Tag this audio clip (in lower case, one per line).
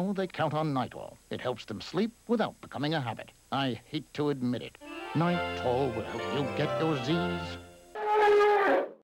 music
speech